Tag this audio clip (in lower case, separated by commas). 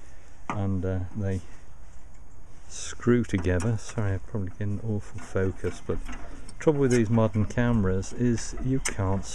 speech